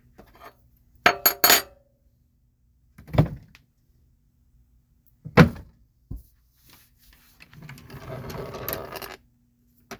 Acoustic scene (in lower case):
kitchen